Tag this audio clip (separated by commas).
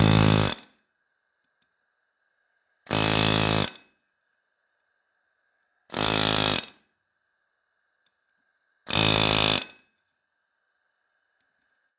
Tools